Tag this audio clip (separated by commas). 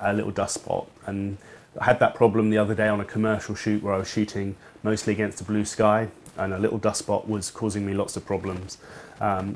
Speech